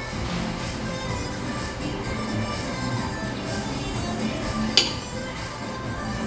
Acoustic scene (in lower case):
cafe